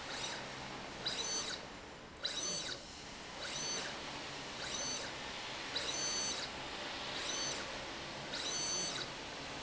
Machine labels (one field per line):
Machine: slide rail